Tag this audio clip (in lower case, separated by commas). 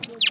animal, bird, wild animals